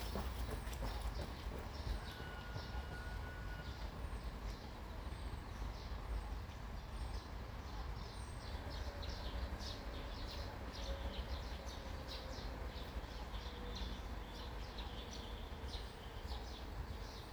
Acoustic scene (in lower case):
park